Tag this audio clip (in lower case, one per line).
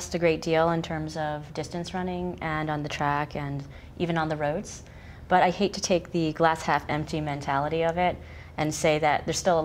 speech